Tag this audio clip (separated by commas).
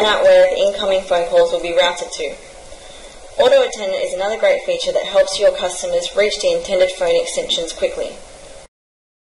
Speech